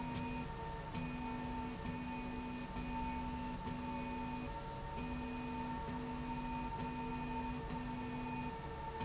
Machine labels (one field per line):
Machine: slide rail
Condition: normal